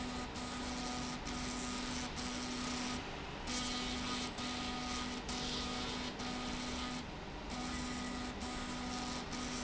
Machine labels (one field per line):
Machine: slide rail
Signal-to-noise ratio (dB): 0 dB